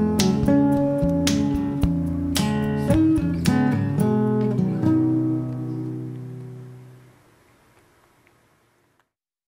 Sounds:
music

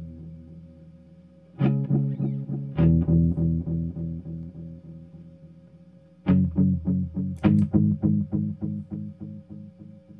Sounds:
music

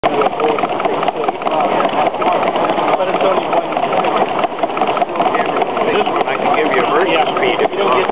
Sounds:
speech

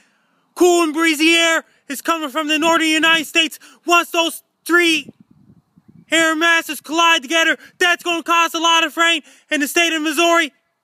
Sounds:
speech

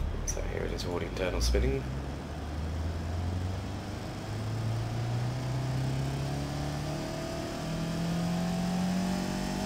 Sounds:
revving
speech
vehicle

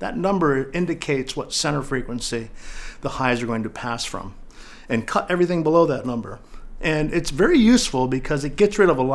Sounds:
speech

